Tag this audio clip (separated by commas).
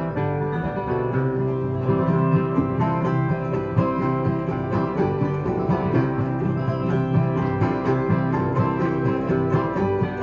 Music, Country